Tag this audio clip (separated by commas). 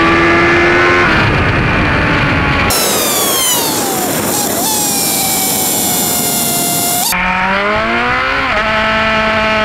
Vehicle, Motorcycle